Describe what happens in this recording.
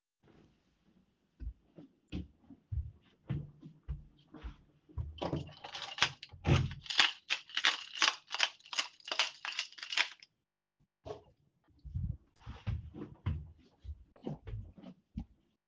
I walk to the door, pull the keys out of the doorlock, put them in my pocket, walk with keys in pocket